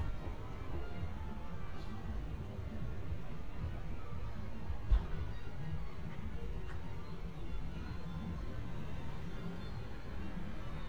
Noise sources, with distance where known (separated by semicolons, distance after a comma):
music from an unclear source, far